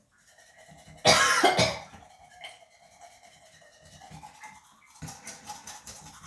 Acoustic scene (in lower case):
restroom